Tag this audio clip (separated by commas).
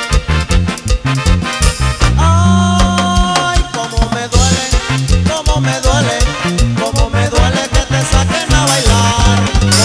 pop, Music